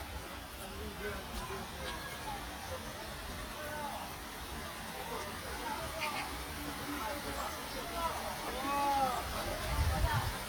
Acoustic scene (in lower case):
park